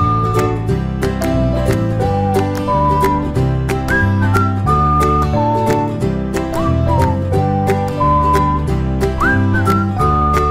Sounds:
Music

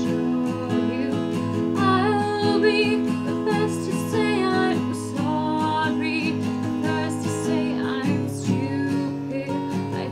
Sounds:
Music, Female singing

